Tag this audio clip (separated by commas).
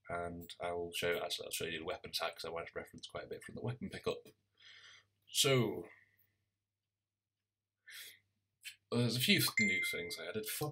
Speech